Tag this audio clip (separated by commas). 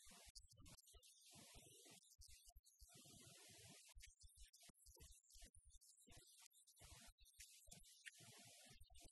Speech